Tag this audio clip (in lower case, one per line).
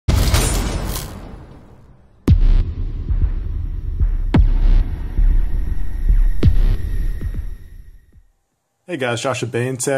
inside a small room
speech
throbbing